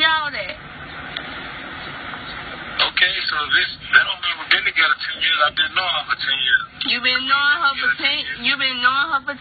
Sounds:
speech

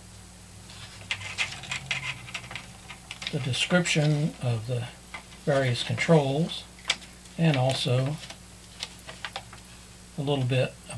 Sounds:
speech

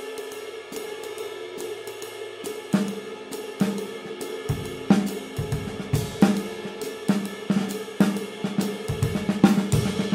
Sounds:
cymbal
snare drum
hi-hat
music

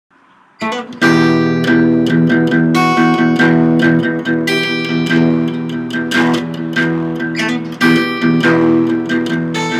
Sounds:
plucked string instrument
musical instrument
acoustic guitar
music
inside a small room
guitar
playing acoustic guitar

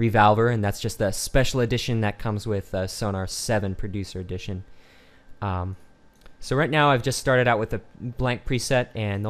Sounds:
speech

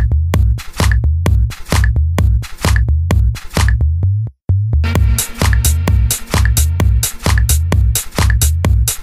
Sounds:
electronic music
music

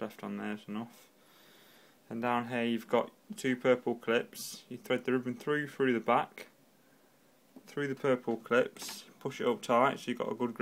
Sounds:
speech

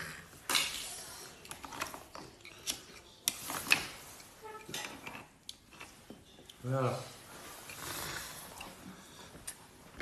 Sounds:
people eating noodle

